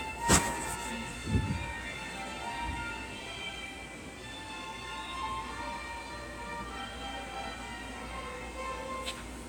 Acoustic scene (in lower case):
subway station